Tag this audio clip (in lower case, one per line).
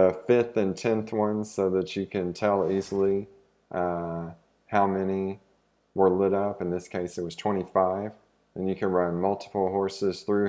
speech